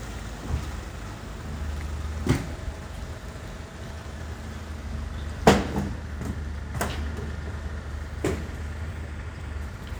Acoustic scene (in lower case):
residential area